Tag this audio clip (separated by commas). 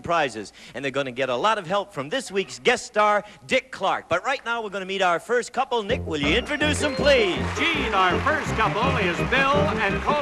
Speech, Music